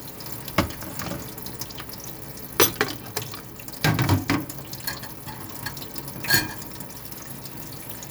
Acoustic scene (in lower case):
kitchen